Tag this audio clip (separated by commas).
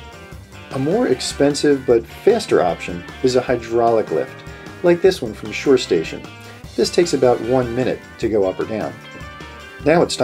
Speech, Music